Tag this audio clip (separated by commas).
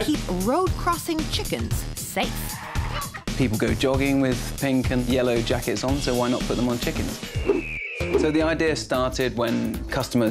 Music, Speech